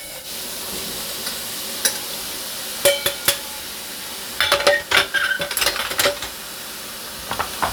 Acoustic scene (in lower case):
kitchen